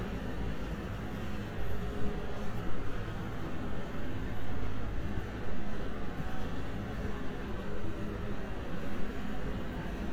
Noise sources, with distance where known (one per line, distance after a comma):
small-sounding engine, far
engine of unclear size